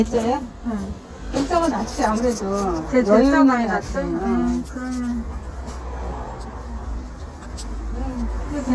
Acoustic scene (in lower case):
crowded indoor space